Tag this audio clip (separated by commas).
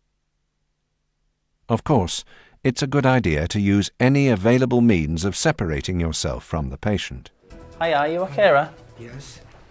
Speech synthesizer